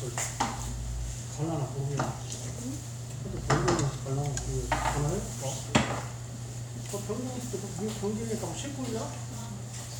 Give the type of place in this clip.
restaurant